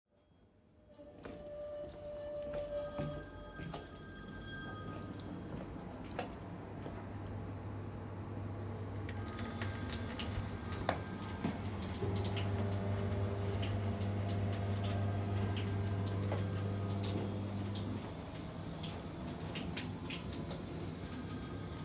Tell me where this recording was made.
kitchen